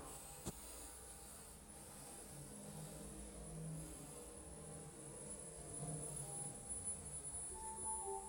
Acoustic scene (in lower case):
elevator